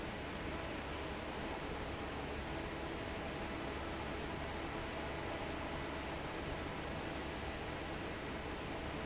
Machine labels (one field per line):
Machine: fan